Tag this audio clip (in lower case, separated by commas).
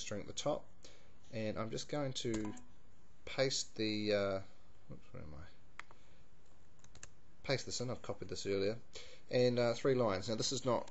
speech